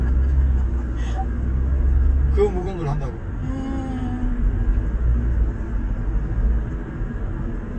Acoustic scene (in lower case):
car